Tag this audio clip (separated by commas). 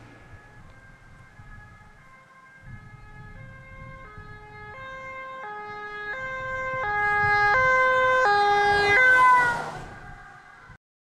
Alarm, Motor vehicle (road), Siren, Vehicle